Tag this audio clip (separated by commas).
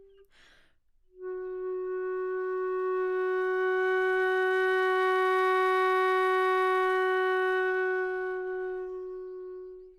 Music, woodwind instrument, Musical instrument